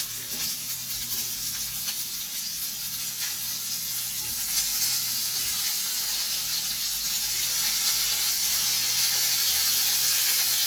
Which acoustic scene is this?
kitchen